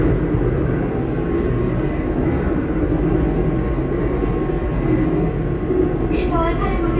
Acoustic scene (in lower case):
subway train